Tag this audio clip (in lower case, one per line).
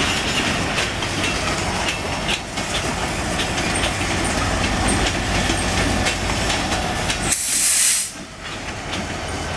steam
hiss